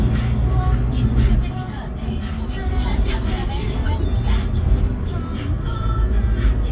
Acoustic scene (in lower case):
car